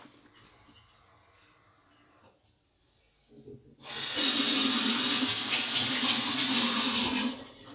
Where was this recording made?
in a kitchen